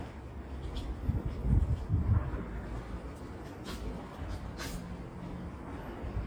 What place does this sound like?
residential area